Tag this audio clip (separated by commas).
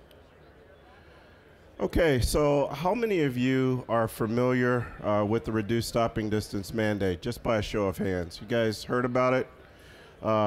Speech